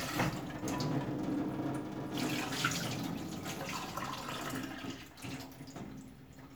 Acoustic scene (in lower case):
kitchen